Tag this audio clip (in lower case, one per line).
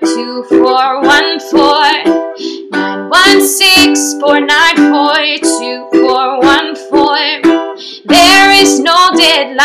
music